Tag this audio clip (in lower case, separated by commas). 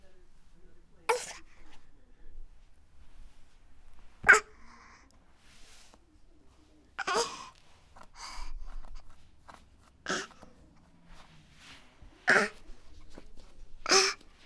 human voice